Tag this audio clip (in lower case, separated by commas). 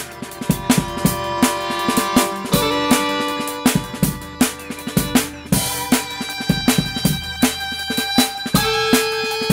musical instrument, music